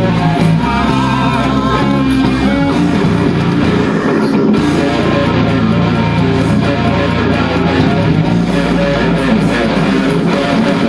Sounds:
plucked string instrument
musical instrument
bass guitar
music
strum
guitar
acoustic guitar

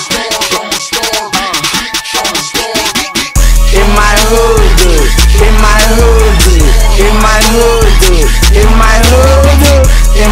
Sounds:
music

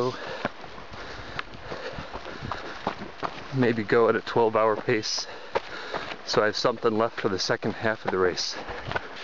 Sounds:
speech
outside, rural or natural

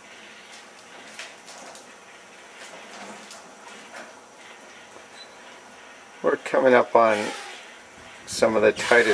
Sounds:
speech

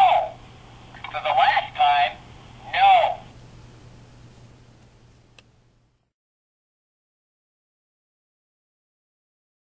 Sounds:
speech

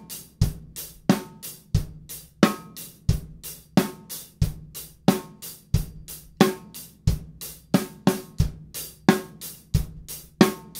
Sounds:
drum kit
hi-hat
snare drum
drum
percussion
bass drum
cymbal
rimshot

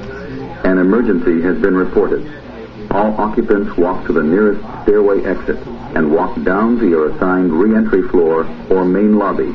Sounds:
speech

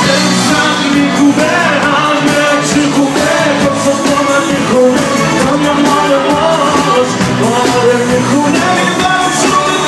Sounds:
music

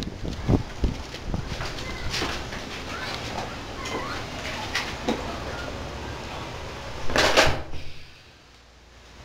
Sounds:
inside a small room

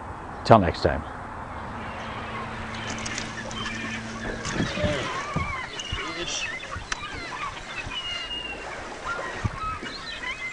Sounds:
outside, rural or natural
speech
animal

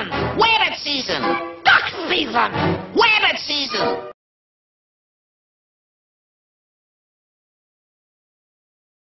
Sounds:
speech

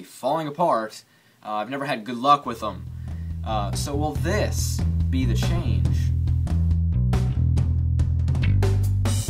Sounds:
speech
music

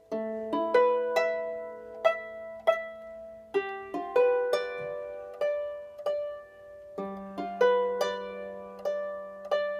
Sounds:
playing harp

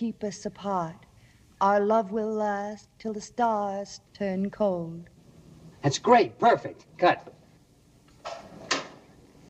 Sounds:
speech

